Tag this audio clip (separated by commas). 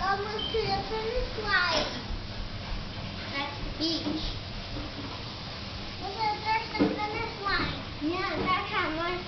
Speech